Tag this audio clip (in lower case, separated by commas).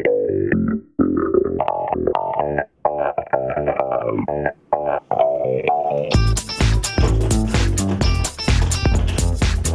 music